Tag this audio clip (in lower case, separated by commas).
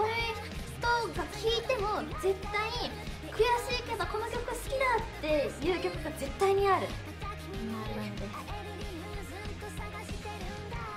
music, speech